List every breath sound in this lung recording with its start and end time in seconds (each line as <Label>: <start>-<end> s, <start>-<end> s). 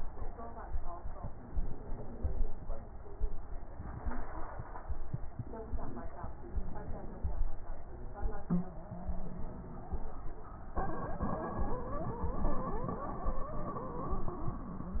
Inhalation: 1.41-2.51 s, 6.35-7.45 s